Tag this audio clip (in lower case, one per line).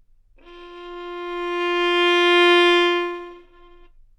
music
musical instrument
bowed string instrument